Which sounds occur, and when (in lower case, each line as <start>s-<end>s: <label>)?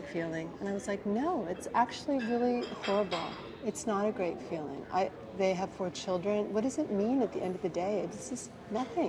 0.0s-9.0s: background noise
0.0s-9.0s: speech babble
0.0s-3.3s: woman speaking
1.5s-1.7s: generic impact sounds
2.1s-3.3s: generic impact sounds
3.6s-8.3s: woman speaking